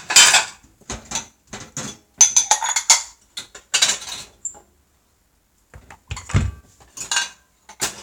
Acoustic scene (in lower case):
kitchen